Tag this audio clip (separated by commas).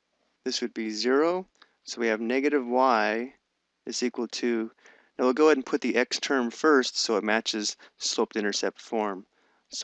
Speech